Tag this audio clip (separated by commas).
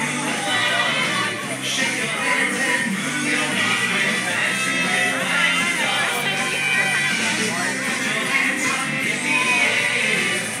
Music, Speech